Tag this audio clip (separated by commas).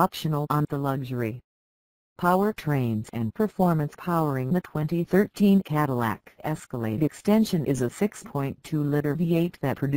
Speech